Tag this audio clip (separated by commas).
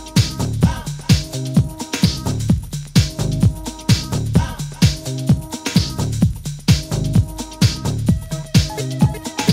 Dance music, Disco, Music